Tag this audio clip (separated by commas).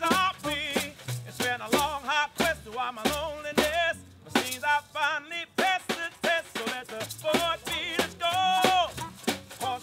Music